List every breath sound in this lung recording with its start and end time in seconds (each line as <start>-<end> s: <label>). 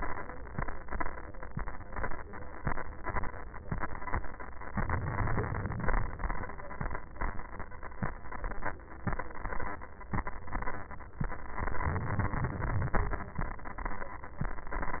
4.69-6.19 s: inhalation
11.56-13.06 s: inhalation